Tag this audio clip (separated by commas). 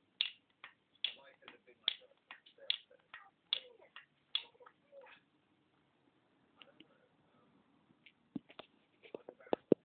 Speech